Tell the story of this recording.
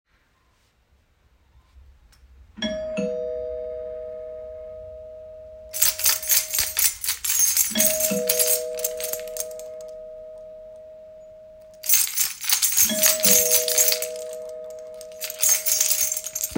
The doorbell rings a couple of times while I am jiggling my keys around.